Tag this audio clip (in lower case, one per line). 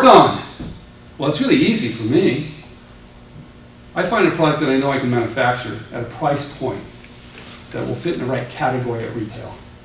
inside a small room
speech